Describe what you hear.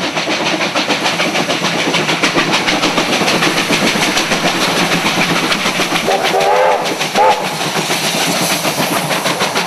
A train is chugging along blows its whistle and steam escapes from its engine